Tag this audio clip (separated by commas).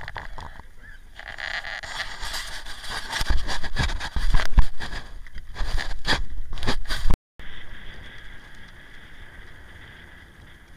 Boat